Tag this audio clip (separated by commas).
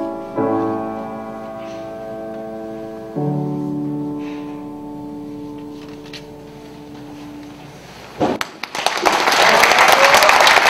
inside a large room or hall, Music